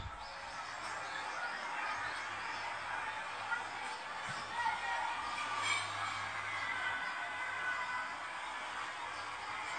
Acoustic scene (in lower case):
residential area